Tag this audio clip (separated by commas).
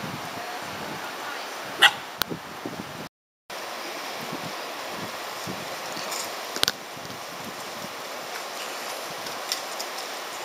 outside, rural or natural, Dog, Domestic animals, Animal